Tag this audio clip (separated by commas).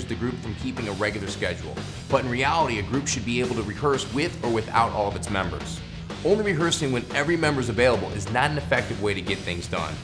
Speech, Music